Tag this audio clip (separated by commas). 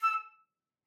Wind instrument, Musical instrument, Music